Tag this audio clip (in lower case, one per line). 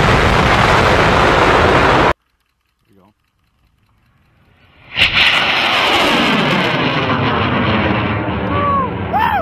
missile launch